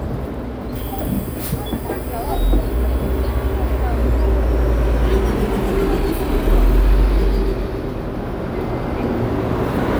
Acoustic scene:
street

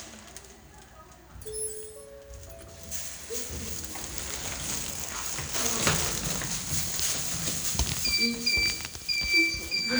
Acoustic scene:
elevator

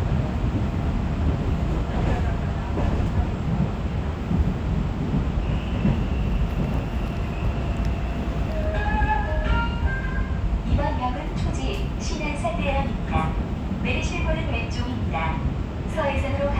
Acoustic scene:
subway train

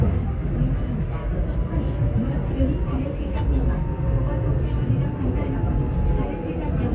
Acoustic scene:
subway train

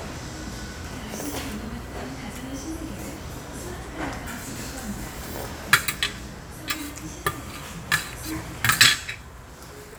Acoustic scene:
restaurant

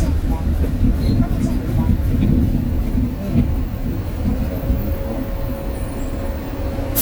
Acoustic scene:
bus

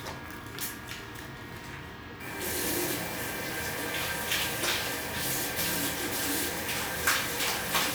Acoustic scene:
restroom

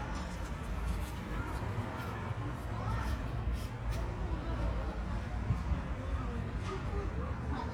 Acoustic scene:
residential area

